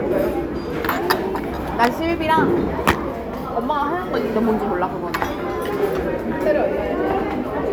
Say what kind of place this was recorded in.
crowded indoor space